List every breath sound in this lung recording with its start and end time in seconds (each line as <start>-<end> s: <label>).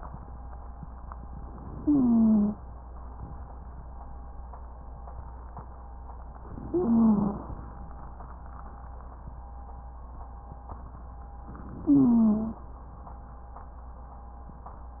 1.59-2.61 s: inhalation
1.71-2.61 s: wheeze
6.54-7.57 s: inhalation
6.67-7.45 s: wheeze
11.79-12.67 s: inhalation
11.82-12.67 s: wheeze